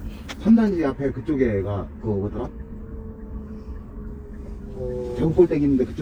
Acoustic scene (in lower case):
car